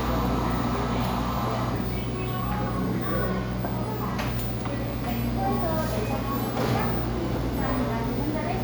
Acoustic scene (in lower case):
cafe